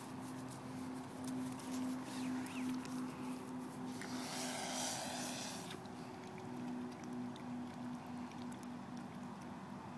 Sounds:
Whimper (dog), Dog, Animal, Domestic animals

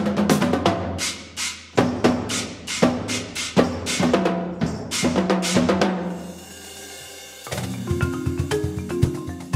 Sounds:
Drum, Percussion

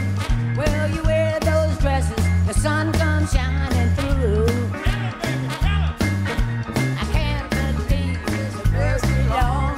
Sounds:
Music

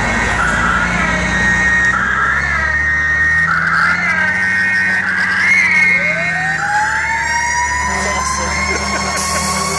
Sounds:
Speech, Vehicle, Siren, fire truck (siren)

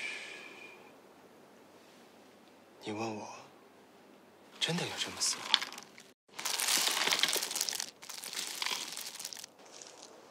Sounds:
Speech

